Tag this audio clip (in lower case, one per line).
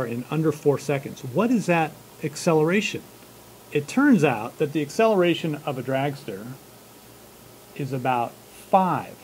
speech